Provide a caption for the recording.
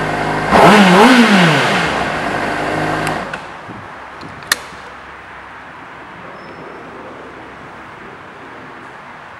An engine revving up